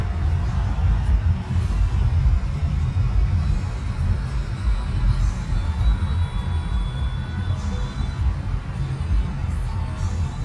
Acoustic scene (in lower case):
car